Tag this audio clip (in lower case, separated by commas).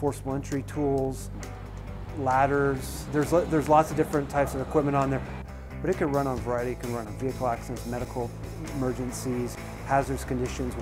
music, speech